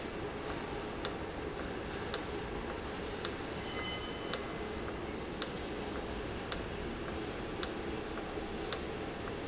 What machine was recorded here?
valve